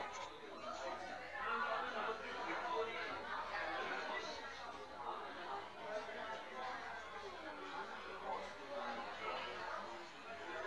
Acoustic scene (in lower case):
crowded indoor space